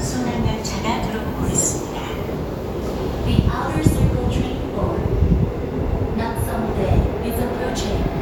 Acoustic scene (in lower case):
subway station